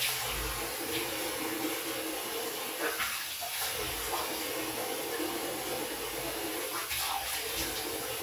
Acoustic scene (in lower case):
restroom